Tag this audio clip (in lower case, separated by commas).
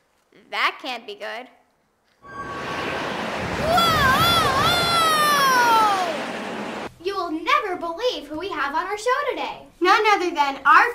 speech